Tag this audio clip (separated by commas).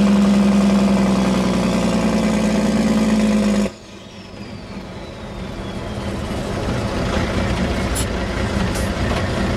Vehicle